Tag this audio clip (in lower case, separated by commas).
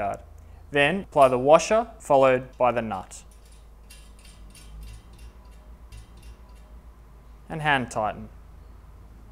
speech